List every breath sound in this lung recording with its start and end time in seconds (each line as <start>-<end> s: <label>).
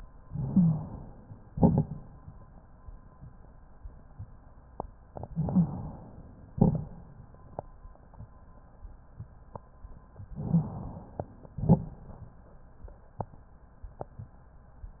0.20-1.28 s: inhalation
0.30-0.85 s: wheeze
1.53-2.35 s: exhalation
1.53-2.35 s: crackles
5.31-5.65 s: wheeze
5.31-6.37 s: inhalation
6.59-7.24 s: exhalation
10.37-11.42 s: inhalation
11.55-12.36 s: exhalation